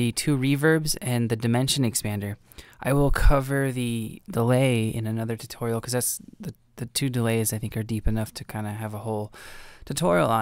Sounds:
speech

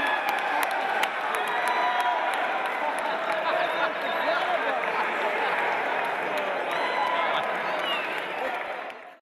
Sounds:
speech
whoop

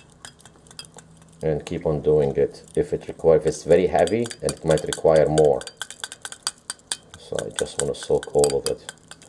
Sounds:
speech
water

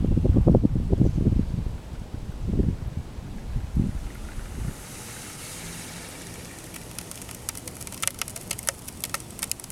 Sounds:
eruption

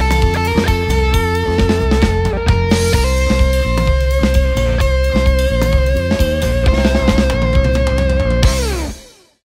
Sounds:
pop music
music

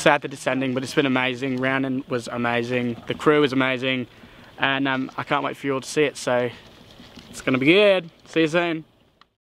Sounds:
speech

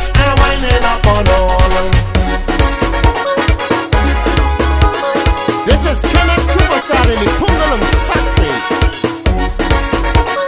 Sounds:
music

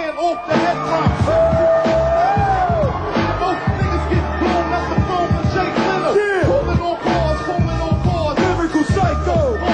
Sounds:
music

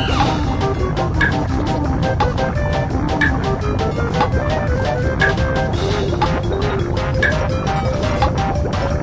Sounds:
music

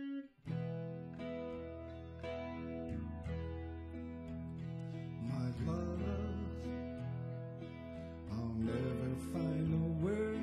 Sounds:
guitar
music
musical instrument

